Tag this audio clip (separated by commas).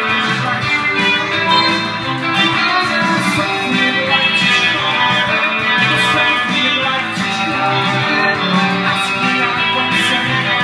Guitar, Acoustic guitar, Music, Plucked string instrument, Electric guitar, Musical instrument